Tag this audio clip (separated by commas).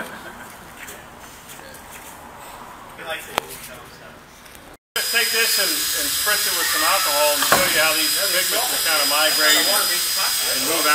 Speech, inside a large room or hall